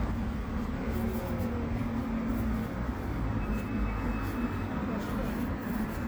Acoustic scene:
residential area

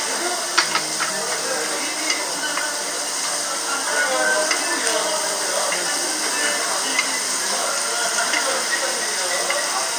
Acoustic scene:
restaurant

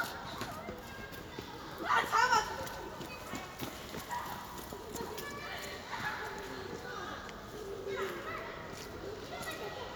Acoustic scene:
park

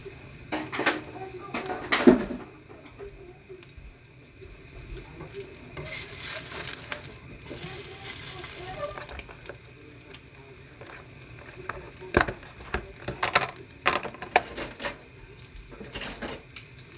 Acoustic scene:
kitchen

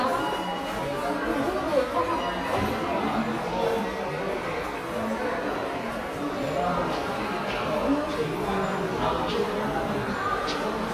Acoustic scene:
subway station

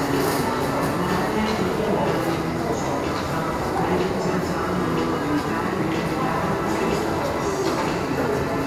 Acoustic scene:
subway station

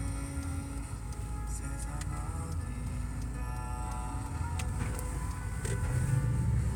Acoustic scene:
car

